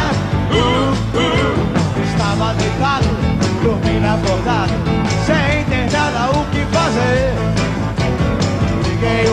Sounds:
Blues, Music

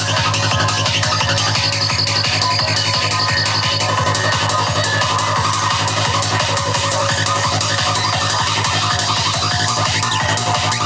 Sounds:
Music, Exciting music

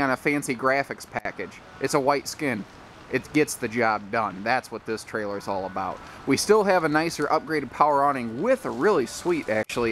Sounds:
Speech

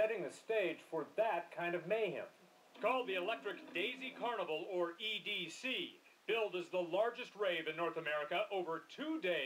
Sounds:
Speech

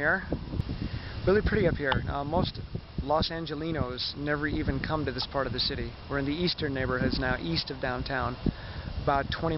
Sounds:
Speech, outside, rural or natural

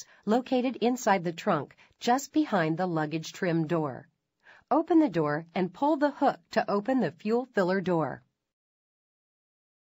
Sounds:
Speech

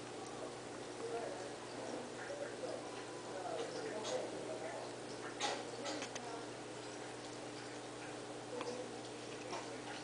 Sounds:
Speech

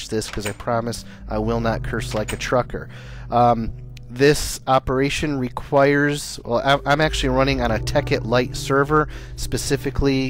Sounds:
Speech

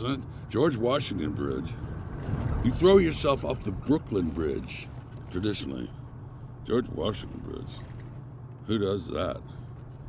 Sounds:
Speech

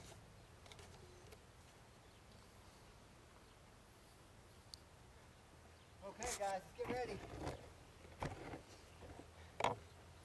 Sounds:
Speech

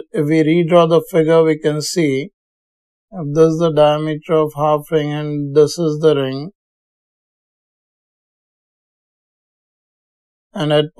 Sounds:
Speech

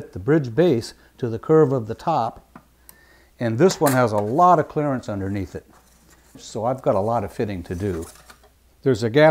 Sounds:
Speech

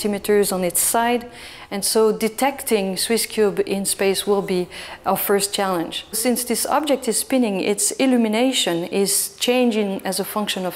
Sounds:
Speech

